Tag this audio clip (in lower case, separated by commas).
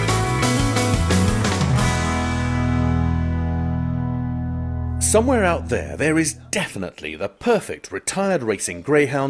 music, speech